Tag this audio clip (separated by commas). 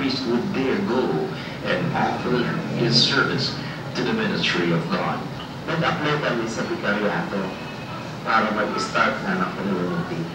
Speech